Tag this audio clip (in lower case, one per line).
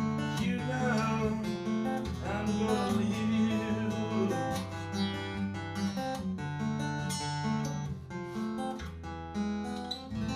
music